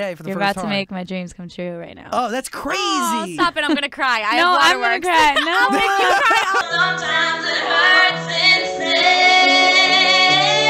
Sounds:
speech, music, inside a small room, singing

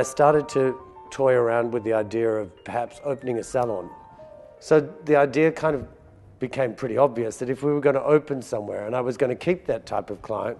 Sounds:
speech, music

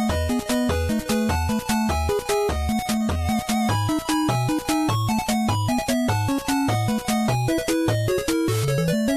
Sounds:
music, video game music

